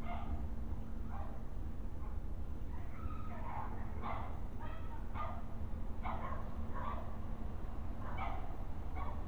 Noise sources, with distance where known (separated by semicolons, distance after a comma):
dog barking or whining, far